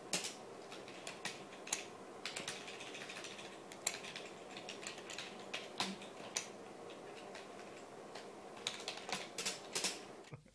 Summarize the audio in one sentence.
Rapid typing on computer keyboard